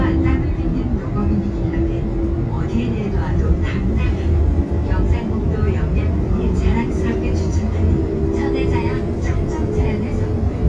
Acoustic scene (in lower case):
bus